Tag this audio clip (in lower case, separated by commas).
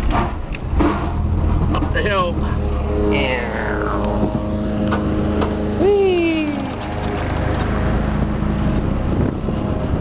speech